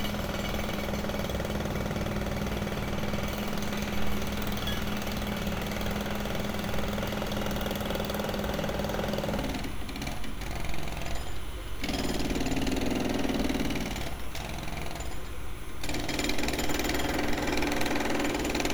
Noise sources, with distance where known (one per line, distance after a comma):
jackhammer, near